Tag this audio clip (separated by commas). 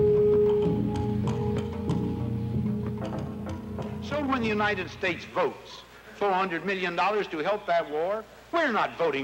Speech, Music